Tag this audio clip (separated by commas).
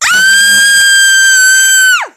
Screaming, Human voice